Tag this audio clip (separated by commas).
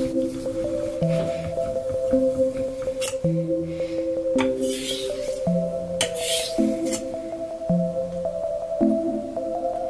sharpen knife